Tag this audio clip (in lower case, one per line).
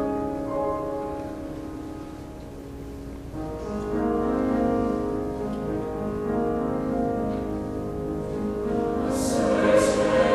music